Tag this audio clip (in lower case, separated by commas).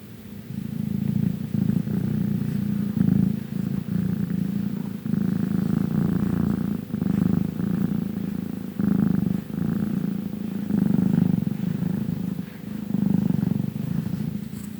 animal, cat, pets, purr